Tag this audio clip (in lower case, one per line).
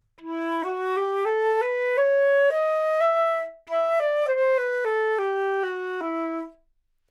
wind instrument
music
musical instrument